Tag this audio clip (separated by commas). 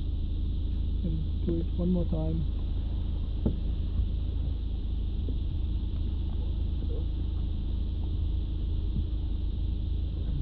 reversing beeps